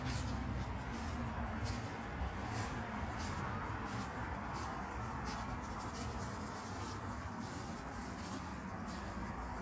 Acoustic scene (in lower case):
park